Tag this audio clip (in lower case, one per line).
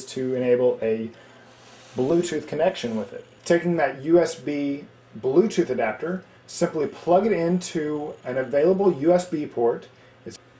inside a small room
speech